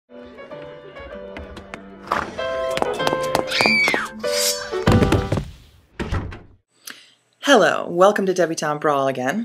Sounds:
music, speech

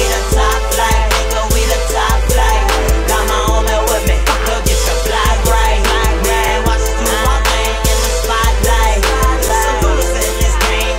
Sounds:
music, exciting music

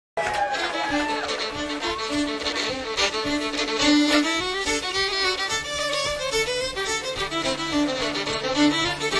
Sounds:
plucked string instrument, string section, bowed string instrument, music, musical instrument

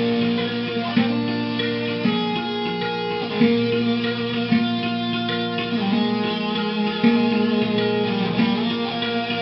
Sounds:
electric guitar, plucked string instrument, guitar, music, musical instrument

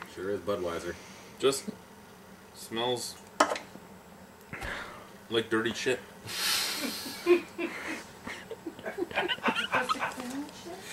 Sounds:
inside a small room, speech

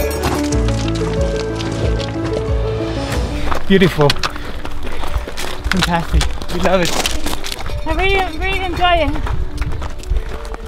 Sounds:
run, speech, music

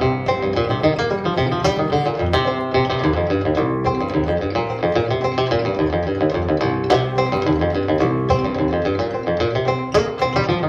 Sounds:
music, musical instrument

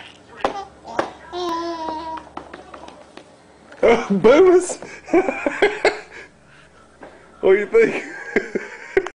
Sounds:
speech

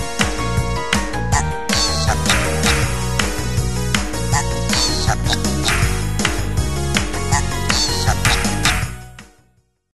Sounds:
music

